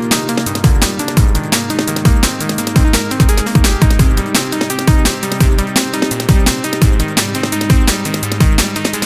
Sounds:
Music

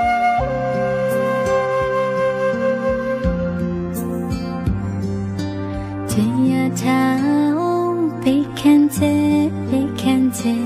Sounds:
Mantra, Music

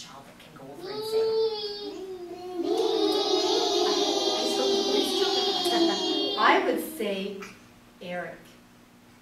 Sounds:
Speech

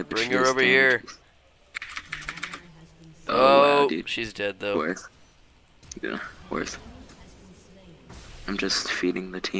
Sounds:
Speech

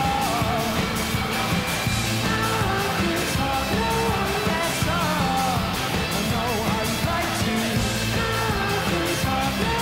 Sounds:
Music

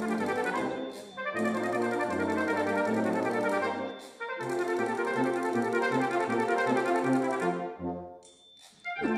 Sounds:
playing french horn, Brass instrument, Musical instrument, Music, French horn

